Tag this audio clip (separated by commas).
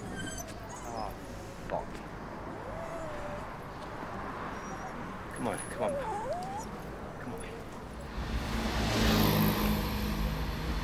Whimper (dog), Speech, Yip